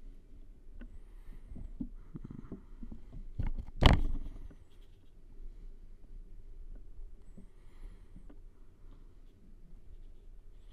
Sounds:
Silence

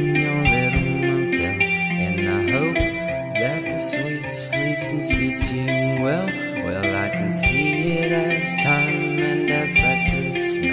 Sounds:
Music

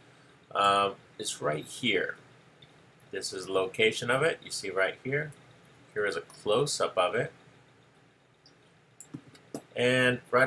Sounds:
Speech

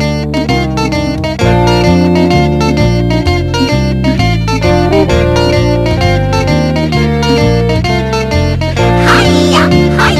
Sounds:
Music, Pop music

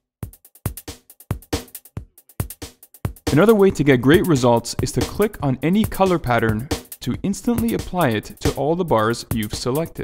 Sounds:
Music, Speech

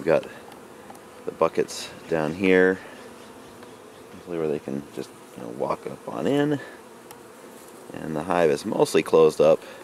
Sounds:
bee or wasp, housefly, Insect

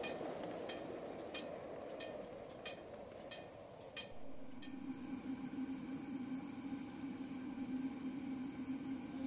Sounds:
Train, Vehicle, Rail transport

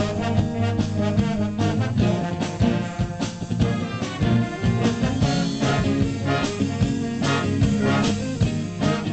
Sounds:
Jazz, Music

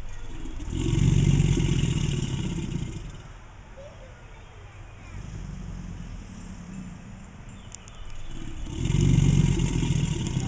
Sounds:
crocodiles hissing

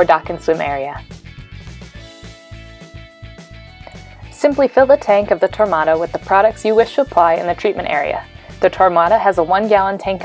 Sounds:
Music, Speech

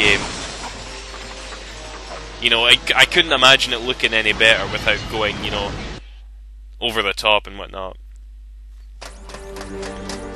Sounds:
Music, Speech, inside a large room or hall

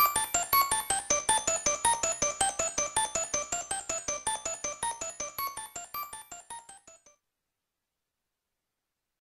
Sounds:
Music

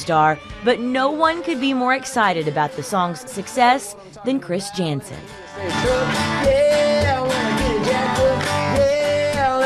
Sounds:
Music, Speech

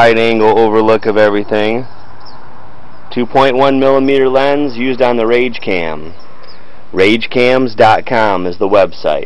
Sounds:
Speech

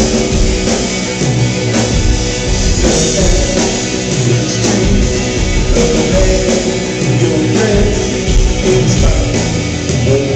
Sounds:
Music

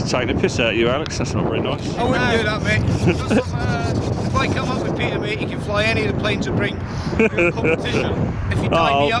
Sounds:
Wind, Wind noise (microphone)

